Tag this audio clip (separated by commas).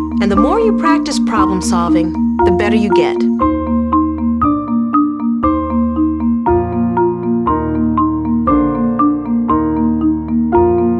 Glockenspiel, Speech, Music